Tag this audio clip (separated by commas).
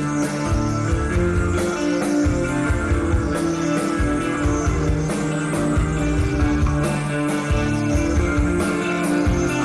Music